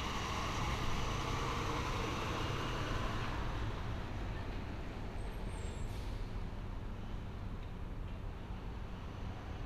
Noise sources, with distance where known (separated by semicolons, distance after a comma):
engine of unclear size